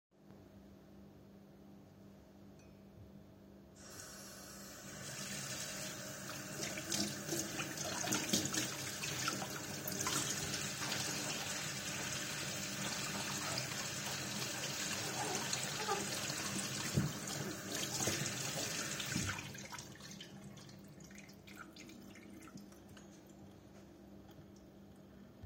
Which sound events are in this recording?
running water